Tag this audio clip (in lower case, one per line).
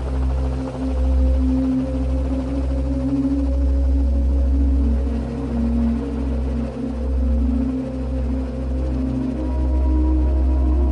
music
outside, rural or natural